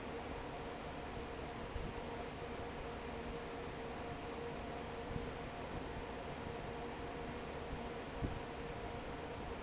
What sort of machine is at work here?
fan